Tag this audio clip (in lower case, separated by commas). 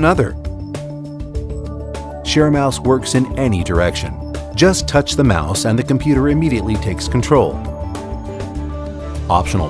music, speech